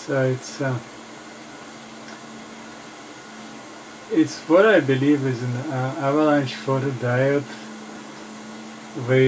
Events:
[0.00, 9.25] background noise
[0.03, 0.77] man speaking
[4.07, 7.43] man speaking

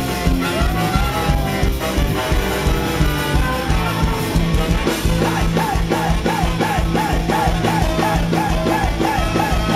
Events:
[0.00, 9.75] crowd
[0.00, 9.75] music

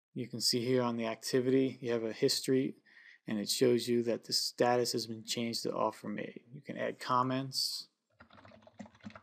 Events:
[0.15, 2.82] male speech
[2.87, 3.21] breathing
[3.25, 6.37] male speech
[6.50, 7.86] male speech
[8.15, 9.22] computer keyboard

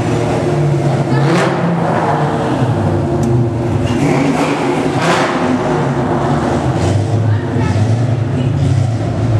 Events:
[0.00, 0.56] accelerating
[0.00, 9.35] car
[1.02, 1.65] human voice
[1.08, 2.34] accelerating
[3.05, 3.30] generic impact sounds
[3.85, 4.76] accelerating
[4.98, 5.42] accelerating
[7.16, 7.90] woman speaking
[8.27, 8.52] generic impact sounds

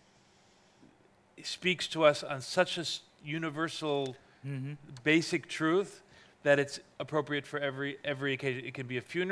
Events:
[0.00, 9.31] background noise
[0.71, 1.12] human sounds
[1.31, 9.31] conversation
[1.34, 3.03] man speaking
[3.13, 3.20] tick
[3.23, 4.13] man speaking
[4.01, 4.11] tick
[4.17, 4.36] breathing
[4.42, 4.73] human voice
[4.93, 5.01] tick
[4.96, 6.01] man speaking
[6.01, 6.34] breathing
[6.42, 6.81] man speaking
[6.96, 9.31] man speaking

